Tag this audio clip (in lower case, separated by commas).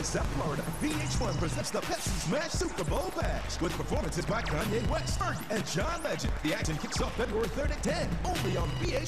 music, speech